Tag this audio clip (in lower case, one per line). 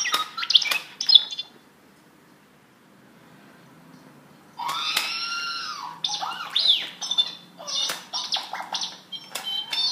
inside a small room
alarm clock